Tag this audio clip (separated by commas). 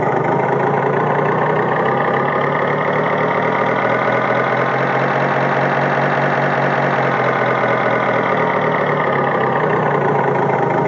Accelerating, Vehicle